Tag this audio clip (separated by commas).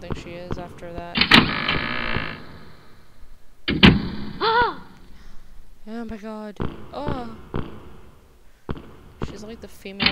Speech